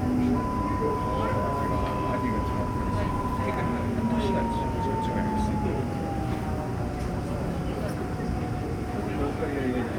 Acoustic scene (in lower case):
subway train